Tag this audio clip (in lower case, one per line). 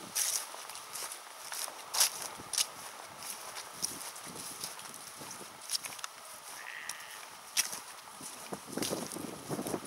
sheep
animal